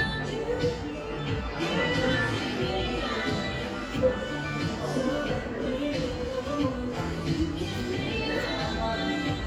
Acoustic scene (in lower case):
cafe